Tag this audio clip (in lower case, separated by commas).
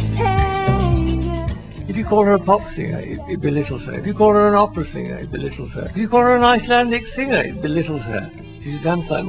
music, speech